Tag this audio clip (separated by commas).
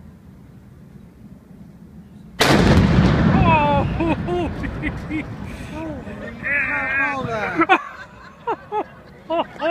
Eruption, Speech